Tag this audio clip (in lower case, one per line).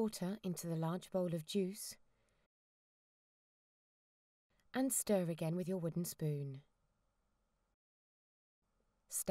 speech